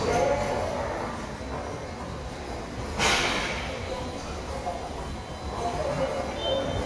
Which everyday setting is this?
subway station